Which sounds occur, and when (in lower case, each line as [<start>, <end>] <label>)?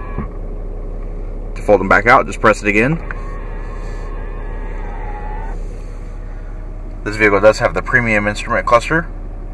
[0.00, 0.26] generic impact sounds
[0.00, 9.53] mechanisms
[1.55, 2.95] man speaking
[2.90, 6.28] generic impact sounds
[7.01, 9.06] man speaking